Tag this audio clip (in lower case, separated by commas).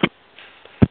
telephone, alarm